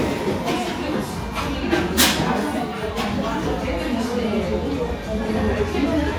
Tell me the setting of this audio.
cafe